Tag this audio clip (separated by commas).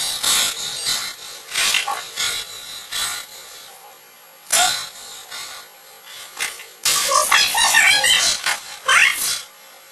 Speech